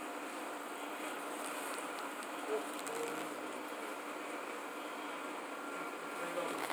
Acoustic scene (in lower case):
subway train